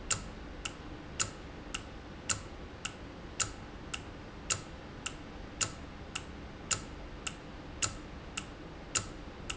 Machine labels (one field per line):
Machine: valve